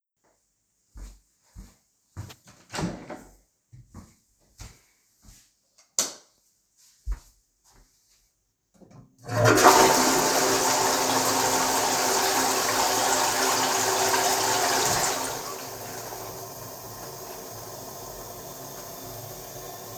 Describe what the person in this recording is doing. I walked to the toilet door, opened it, switched on the light and flushed